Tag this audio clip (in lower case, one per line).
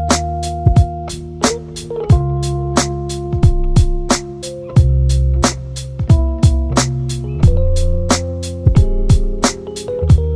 music